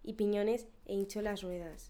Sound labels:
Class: speech